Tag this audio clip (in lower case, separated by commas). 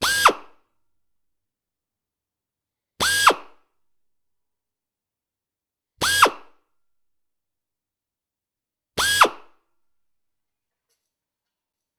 tools, drill, power tool